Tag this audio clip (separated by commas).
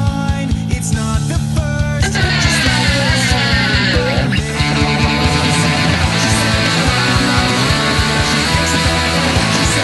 Electric guitar, Music, Musical instrument, Strum, Guitar, Acoustic guitar